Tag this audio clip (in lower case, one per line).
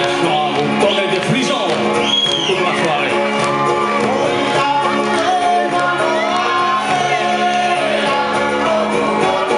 speech
music